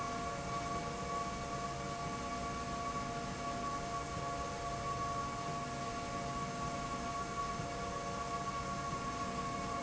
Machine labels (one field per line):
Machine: slide rail